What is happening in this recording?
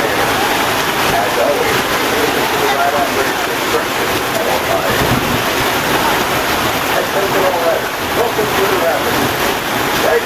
Loud water noises with a man speaking on a loudspeaker